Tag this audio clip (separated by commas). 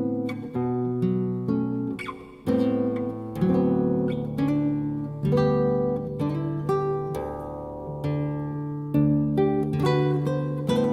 Acoustic guitar, Strum, Musical instrument, Music, Plucked string instrument, Guitar